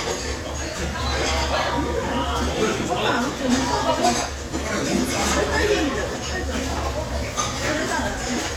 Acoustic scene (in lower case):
crowded indoor space